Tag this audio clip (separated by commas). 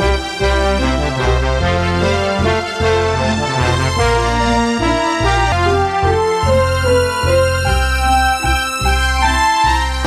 Music